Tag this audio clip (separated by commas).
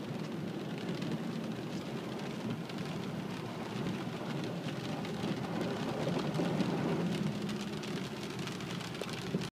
Rain on surface